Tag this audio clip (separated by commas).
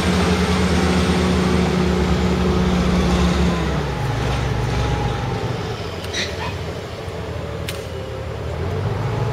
Vehicle